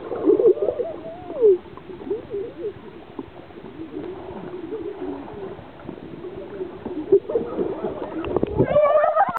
Several people are speaking and laughing in a muffled manner, and water is gurgling and splashing